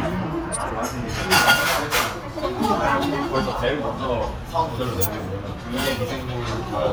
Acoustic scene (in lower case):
restaurant